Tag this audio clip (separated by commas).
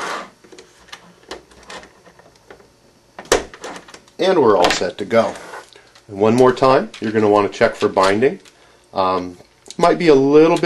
inside a small room, Speech